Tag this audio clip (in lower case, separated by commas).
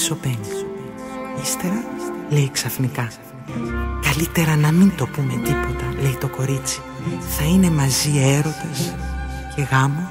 music, speech